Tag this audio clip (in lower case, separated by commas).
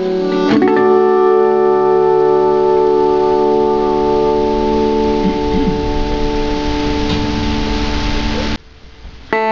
music, musical instrument, guitar, slide guitar